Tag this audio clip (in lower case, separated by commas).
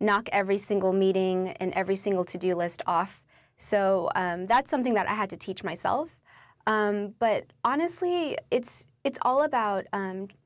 speech, female speech